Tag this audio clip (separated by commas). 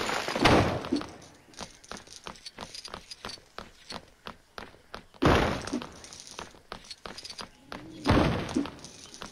crash